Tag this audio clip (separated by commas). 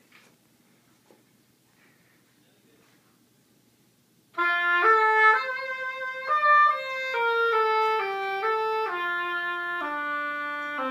playing oboe